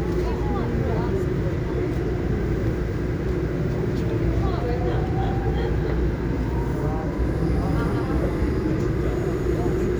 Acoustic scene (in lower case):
subway train